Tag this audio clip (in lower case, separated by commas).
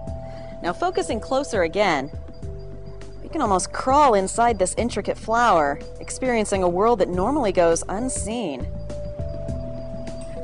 speech, music